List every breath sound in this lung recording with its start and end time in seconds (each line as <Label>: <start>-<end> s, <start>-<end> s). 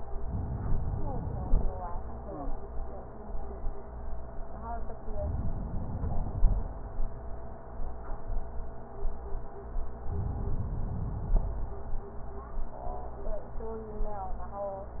Inhalation: 5.08-7.02 s, 9.98-11.92 s